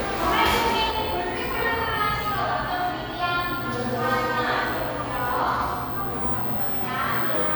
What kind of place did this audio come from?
cafe